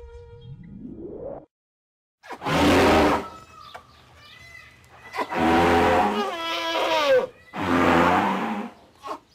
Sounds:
elephant trumpeting

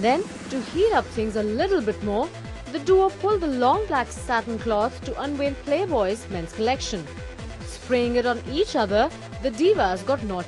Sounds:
speech, music

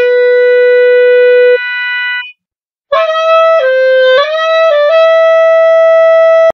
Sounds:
playing clarinet

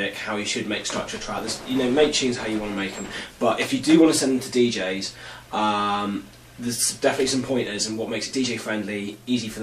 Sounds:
speech

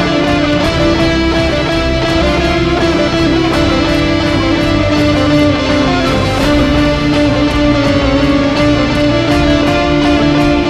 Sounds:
plucked string instrument, music, guitar, strum, electric guitar, musical instrument

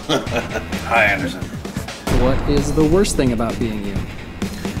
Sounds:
speech, music

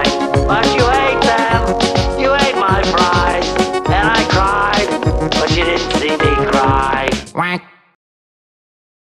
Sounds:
male singing, music

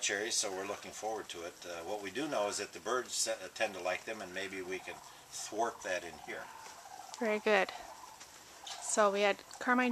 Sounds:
speech

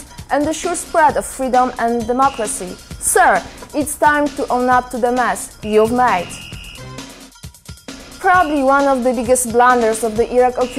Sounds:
speech, music

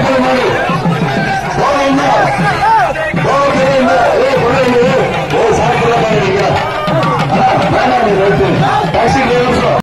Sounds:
music, speech

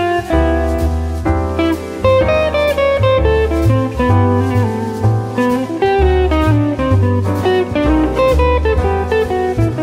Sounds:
music, guitar, plucked string instrument, inside a small room, musical instrument

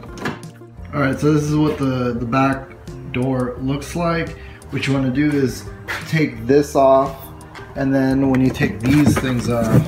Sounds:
music, door, speech

